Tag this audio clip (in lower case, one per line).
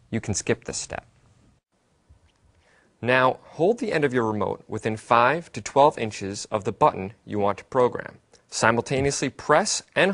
speech